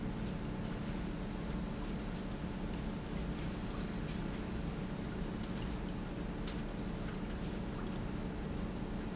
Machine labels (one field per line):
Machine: pump